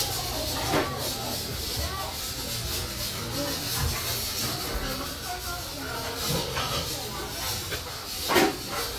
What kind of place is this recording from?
restaurant